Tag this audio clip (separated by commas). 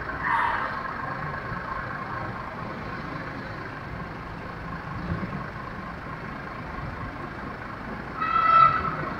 Vehicle, Idling, Car